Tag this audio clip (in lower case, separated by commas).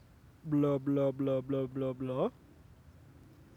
human voice, speech